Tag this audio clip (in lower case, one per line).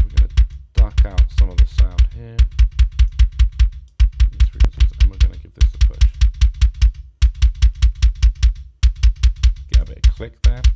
electronic music
drum machine
music